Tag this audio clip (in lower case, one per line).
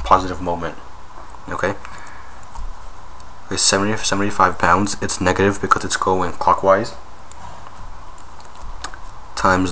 speech